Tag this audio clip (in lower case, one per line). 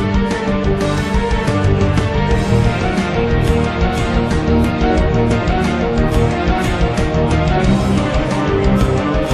music
theme music